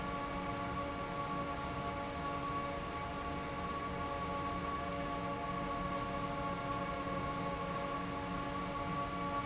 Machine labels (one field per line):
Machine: fan